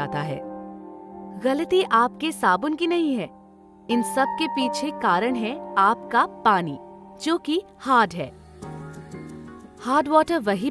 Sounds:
music, speech

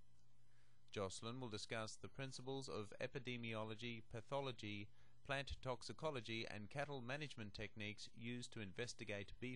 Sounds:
speech

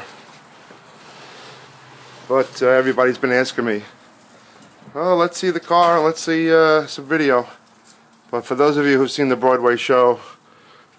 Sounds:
speech

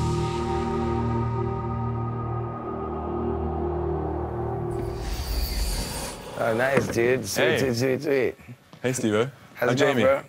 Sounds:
speech, music

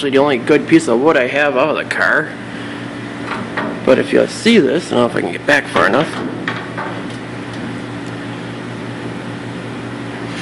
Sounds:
speech

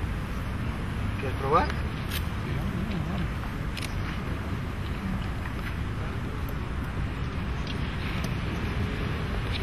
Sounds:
speech

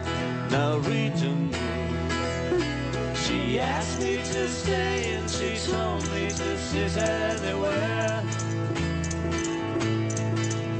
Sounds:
music

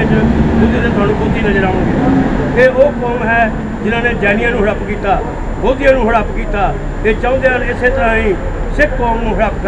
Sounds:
speech, narration, male speech

